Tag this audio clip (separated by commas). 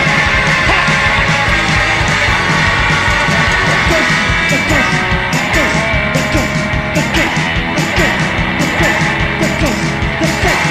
Music